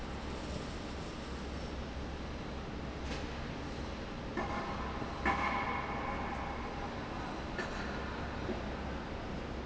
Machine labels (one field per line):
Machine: fan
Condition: normal